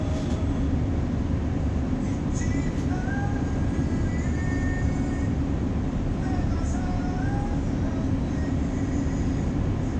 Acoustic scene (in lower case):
bus